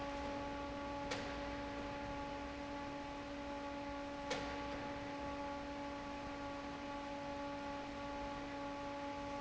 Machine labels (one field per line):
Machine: fan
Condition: normal